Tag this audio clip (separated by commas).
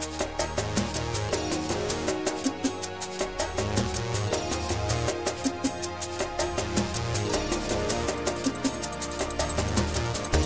Music